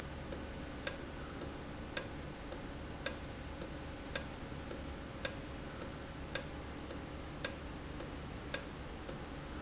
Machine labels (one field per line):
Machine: valve